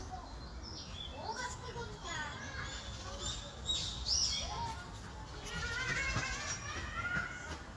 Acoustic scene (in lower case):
park